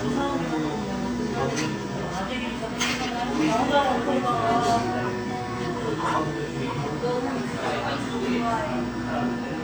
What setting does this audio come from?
cafe